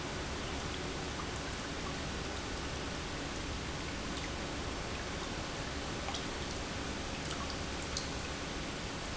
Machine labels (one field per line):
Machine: pump